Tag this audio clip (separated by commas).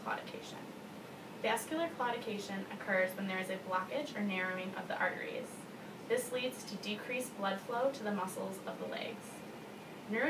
Speech